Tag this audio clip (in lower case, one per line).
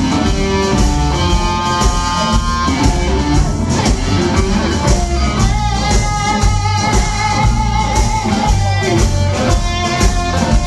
guitar
playing electric guitar
electric guitar
plucked string instrument
musical instrument
strum
music